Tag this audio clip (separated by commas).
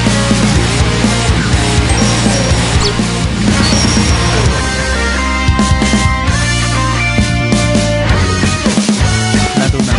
Music